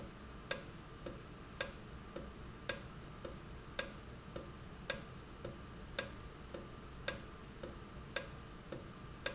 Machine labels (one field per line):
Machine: valve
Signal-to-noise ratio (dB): 6 dB